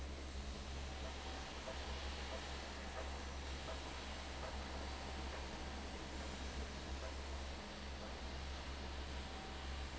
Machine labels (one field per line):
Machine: fan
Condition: abnormal